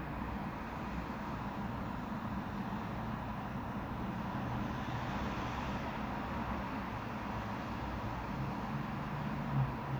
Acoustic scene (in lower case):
residential area